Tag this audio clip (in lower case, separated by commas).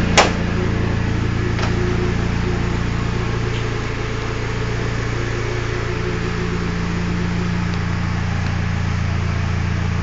idling, car, vehicle, engine